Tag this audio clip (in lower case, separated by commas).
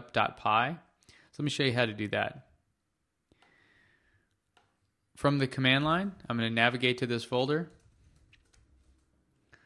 speech